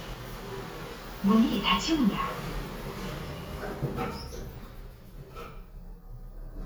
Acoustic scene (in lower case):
elevator